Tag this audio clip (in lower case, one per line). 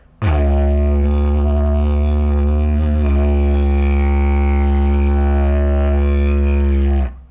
music
musical instrument